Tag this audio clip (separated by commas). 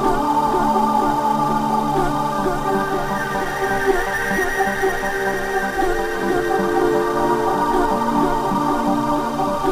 Electronic music, Music